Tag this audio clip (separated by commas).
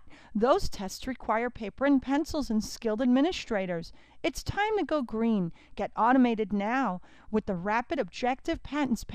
Speech